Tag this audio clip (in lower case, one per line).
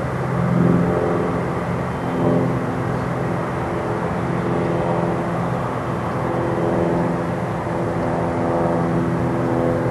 aircraft
airplane
vehicle